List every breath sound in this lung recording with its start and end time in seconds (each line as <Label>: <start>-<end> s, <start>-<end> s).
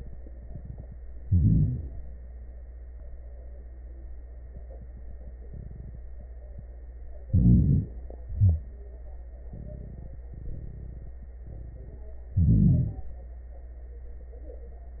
Inhalation: 1.21-2.00 s, 7.26-7.96 s, 12.34-13.10 s
Exhalation: 8.22-8.83 s
Crackles: 1.23-1.98 s, 7.26-7.97 s, 8.22-8.83 s, 12.32-13.08 s